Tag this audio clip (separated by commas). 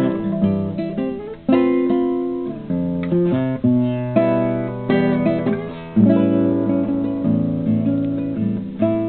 Musical instrument, Music, Acoustic guitar, Guitar, Plucked string instrument